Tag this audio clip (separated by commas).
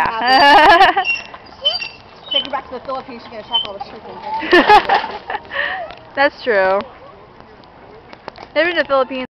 Chicken, Fowl, Cluck